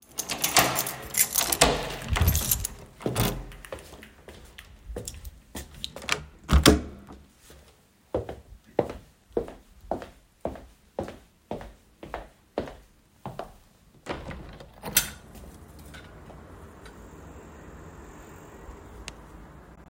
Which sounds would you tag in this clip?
door, keys, footsteps, window